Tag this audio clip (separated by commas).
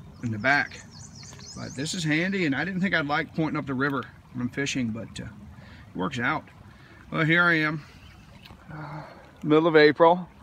Speech